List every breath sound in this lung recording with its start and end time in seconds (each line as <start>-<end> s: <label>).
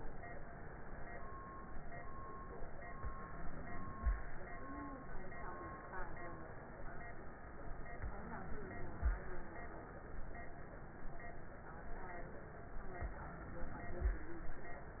7.98-9.01 s: inhalation
7.98-9.01 s: crackles
9.04-10.07 s: exhalation